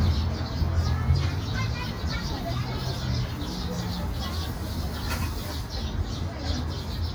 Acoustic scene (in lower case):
park